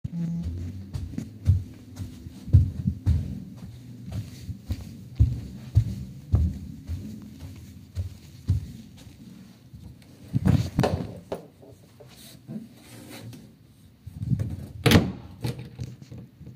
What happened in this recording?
I opened the wardrobe and then I made some footsteps